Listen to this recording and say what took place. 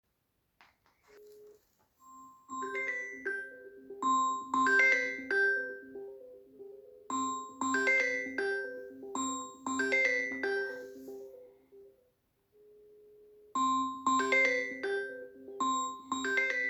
I sat on the couch and was tapping on my phone screen and got a phone call.